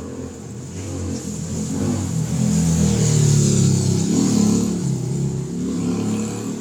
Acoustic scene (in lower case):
residential area